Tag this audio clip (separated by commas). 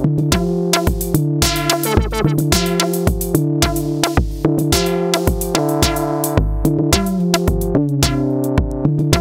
Techno, Electronica, Drum machine, Music